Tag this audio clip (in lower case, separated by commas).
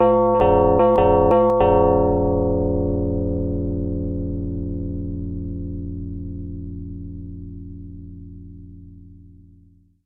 doorbell, domestic sounds, alarm, door